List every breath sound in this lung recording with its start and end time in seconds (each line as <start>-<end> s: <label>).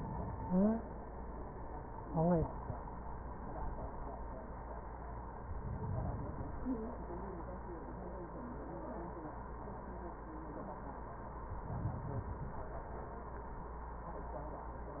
5.41-6.80 s: inhalation
11.44-13.05 s: inhalation